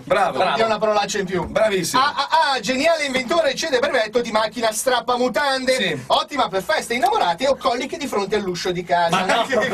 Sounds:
Speech

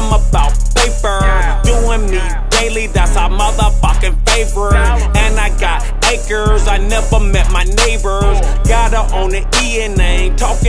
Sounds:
Music

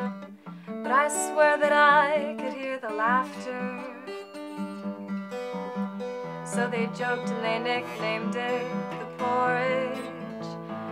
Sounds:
Music

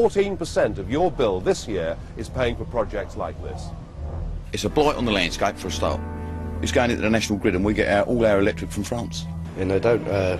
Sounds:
Speech

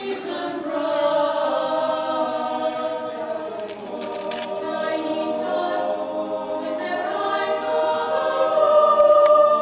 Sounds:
Singing, Choir

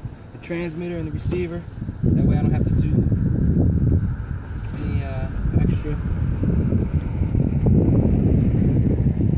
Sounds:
Wind

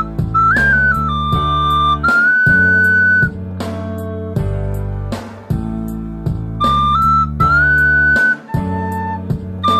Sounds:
Flute, Wind instrument

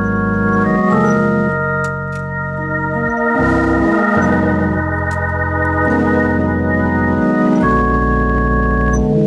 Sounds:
playing hammond organ, Organ, Hammond organ

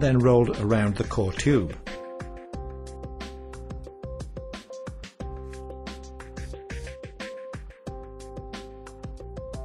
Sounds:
Speech, Music

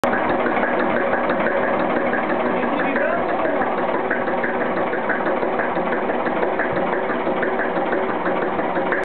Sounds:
Engine, Idling, Speech

